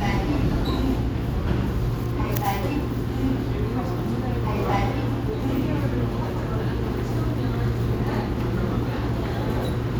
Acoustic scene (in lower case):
subway station